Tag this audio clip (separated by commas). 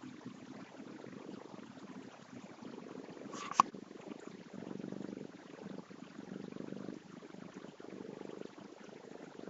Cat, Animal